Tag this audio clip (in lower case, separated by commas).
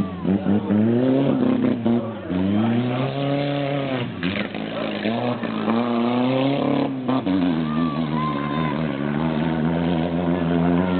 speech, car, vehicle